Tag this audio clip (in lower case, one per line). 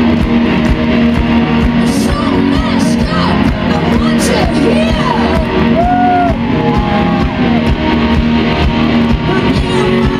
music
speech